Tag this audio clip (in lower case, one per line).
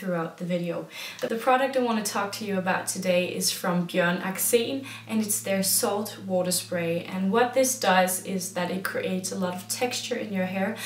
speech